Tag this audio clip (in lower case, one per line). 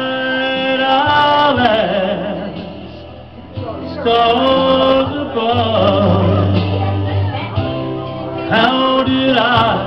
male singing
music
speech